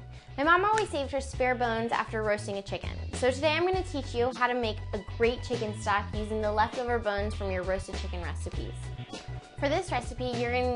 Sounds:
Music, Speech

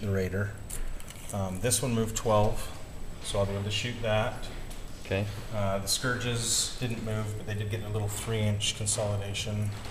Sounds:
Speech

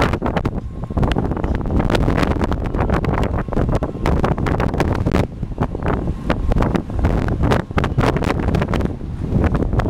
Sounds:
Wind noise (microphone), wind noise

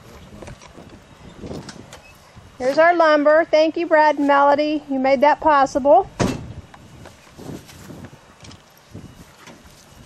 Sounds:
Speech

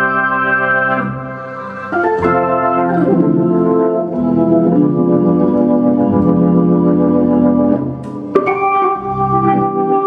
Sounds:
Hammond organ, playing hammond organ, Organ

